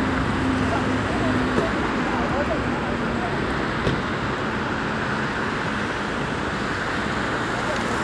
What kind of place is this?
street